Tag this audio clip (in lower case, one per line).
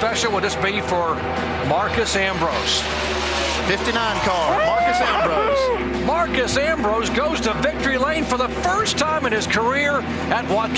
speech